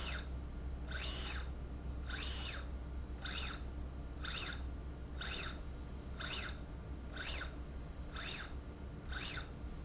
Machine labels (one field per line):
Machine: slide rail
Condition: normal